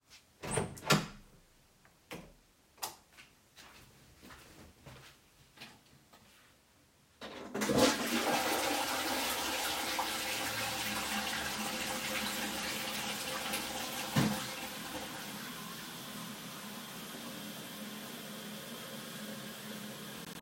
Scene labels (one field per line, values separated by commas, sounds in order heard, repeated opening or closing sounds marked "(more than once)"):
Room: lavatory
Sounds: door, light switch, footsteps, toilet flushing